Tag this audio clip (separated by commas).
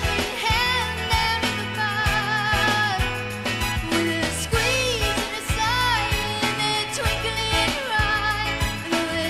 Singing, Pop music